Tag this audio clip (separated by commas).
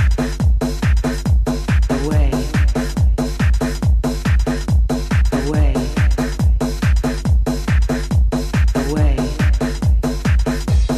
Music